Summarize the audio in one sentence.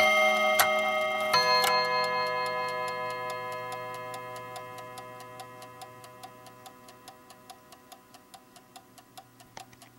Clock bell chiming followed by some clicks and fast ticking